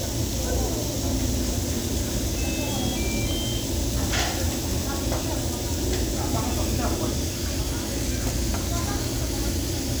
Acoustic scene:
restaurant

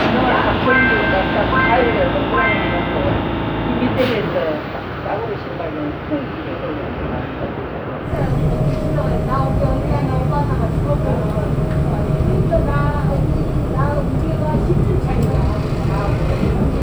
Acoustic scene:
subway train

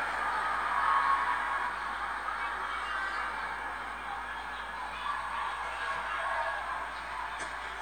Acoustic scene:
residential area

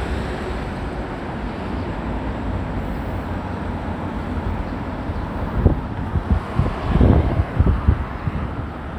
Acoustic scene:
residential area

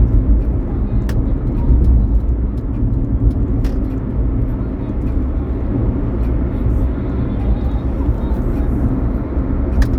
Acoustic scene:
car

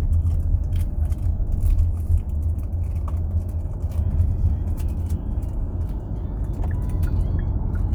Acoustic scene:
car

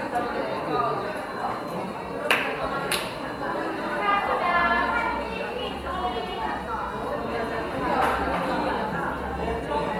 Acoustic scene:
cafe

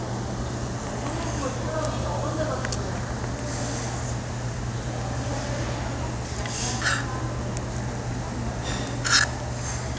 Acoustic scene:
restaurant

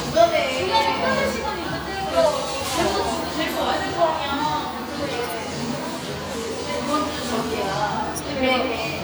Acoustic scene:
cafe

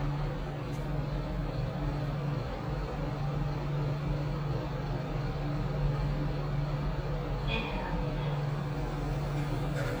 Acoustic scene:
elevator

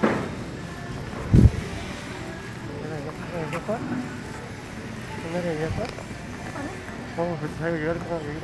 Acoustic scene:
street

